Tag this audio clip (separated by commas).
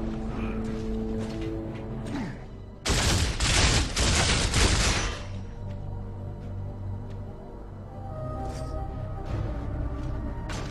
Music